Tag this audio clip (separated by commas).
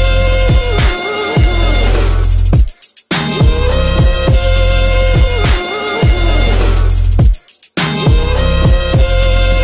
Music